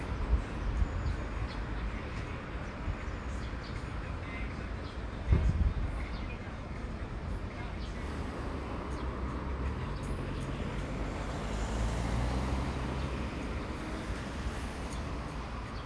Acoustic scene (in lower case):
street